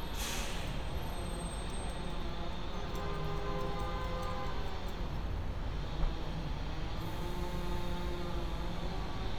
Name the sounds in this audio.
engine of unclear size, car horn